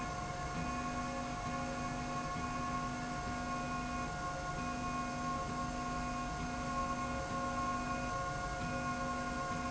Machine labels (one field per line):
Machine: slide rail